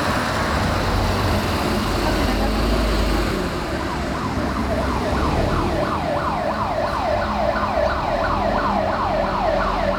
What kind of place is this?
street